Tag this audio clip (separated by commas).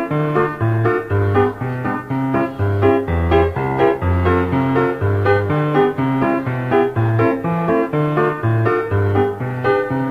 Music